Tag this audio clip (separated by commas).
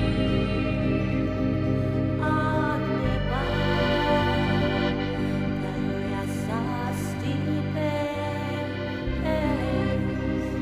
Middle Eastern music, Background music, Soundtrack music, Music